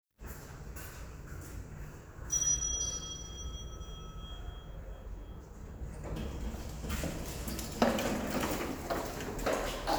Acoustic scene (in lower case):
elevator